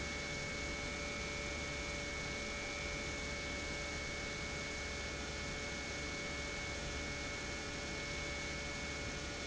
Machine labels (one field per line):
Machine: pump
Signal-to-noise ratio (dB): 0 dB